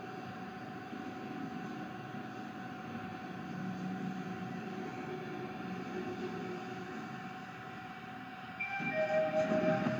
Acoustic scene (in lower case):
elevator